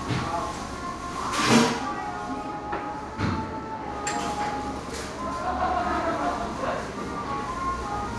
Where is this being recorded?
in a crowded indoor space